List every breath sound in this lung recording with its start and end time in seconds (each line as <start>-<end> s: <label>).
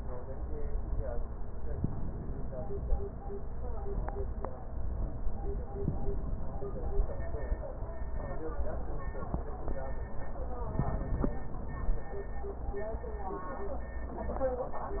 1.74-3.15 s: inhalation
10.62-12.03 s: inhalation